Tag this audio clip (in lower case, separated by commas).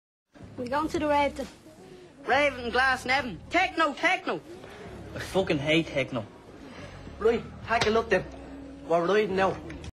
speech